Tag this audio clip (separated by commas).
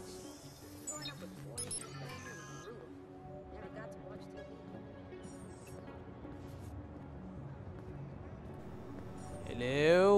Speech, Music